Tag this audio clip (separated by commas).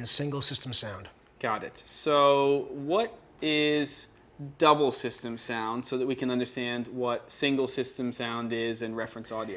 Speech